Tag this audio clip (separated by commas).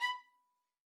Music, Musical instrument, Bowed string instrument